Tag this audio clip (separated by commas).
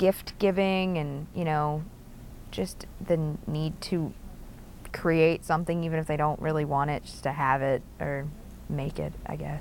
Speech, inside a small room